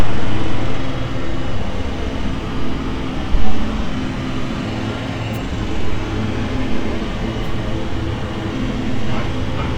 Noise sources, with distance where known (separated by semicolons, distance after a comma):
unidentified impact machinery